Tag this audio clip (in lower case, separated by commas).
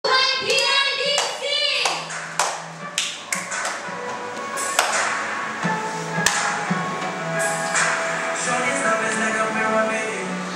clapping, speech, music, tap